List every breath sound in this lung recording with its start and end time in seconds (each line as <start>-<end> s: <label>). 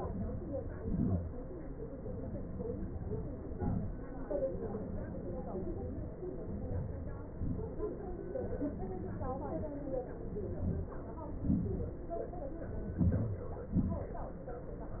0.00-0.58 s: inhalation
0.84-1.29 s: exhalation
6.67-7.34 s: inhalation
7.36-7.90 s: exhalation
10.61-11.07 s: inhalation
11.44-11.91 s: exhalation
13.07-13.61 s: inhalation
13.78-14.26 s: exhalation